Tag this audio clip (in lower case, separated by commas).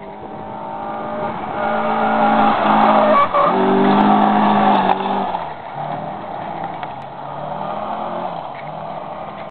car passing by